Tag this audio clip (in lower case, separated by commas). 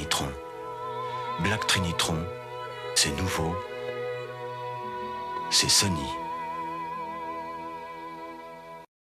music, speech